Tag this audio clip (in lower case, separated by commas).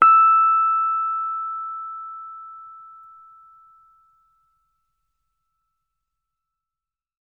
musical instrument, music, keyboard (musical), piano